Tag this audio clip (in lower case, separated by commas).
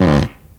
fart